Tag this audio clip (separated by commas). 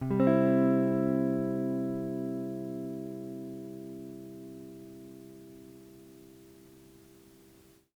Plucked string instrument, Music, Guitar, Musical instrument